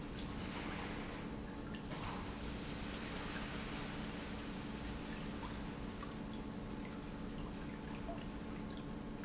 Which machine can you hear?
pump